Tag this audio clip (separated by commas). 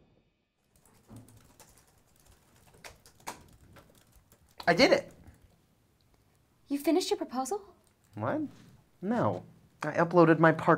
Speech